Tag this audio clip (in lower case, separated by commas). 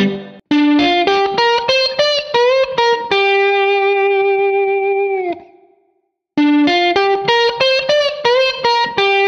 playing steel guitar